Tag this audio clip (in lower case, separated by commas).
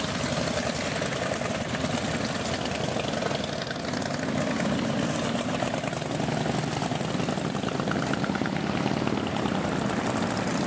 speech